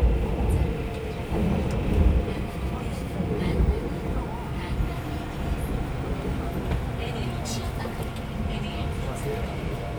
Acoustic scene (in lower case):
subway train